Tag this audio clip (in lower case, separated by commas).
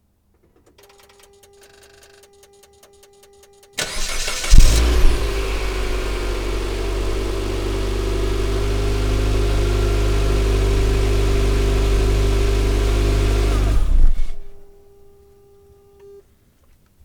engine starting, engine